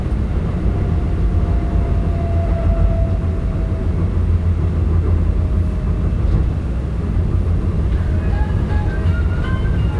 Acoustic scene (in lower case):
subway train